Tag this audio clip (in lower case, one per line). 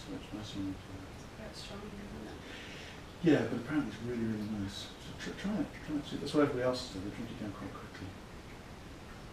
speech